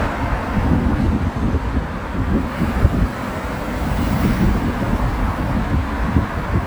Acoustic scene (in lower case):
street